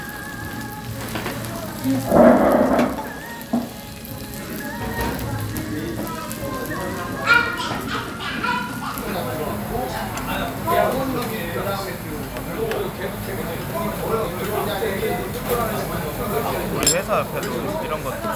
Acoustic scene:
restaurant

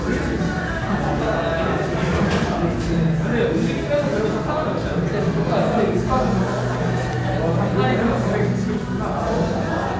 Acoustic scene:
restaurant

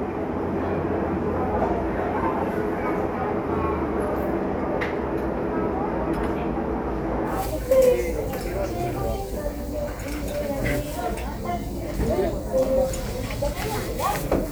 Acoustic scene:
crowded indoor space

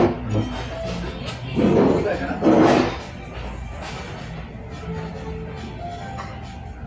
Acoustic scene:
restaurant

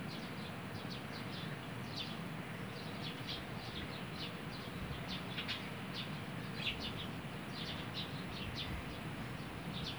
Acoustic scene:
park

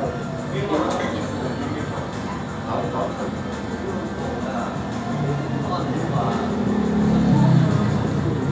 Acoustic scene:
cafe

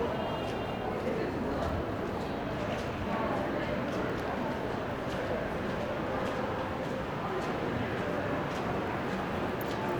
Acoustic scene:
crowded indoor space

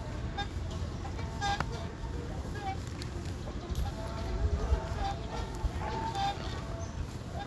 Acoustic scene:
park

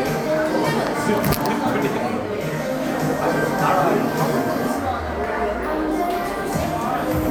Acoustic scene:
crowded indoor space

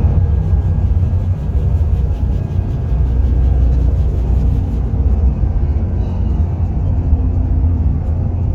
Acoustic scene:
car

